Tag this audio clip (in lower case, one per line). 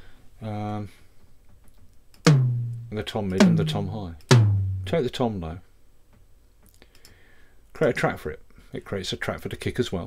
drum
speech
drum machine
bass drum
musical instrument
music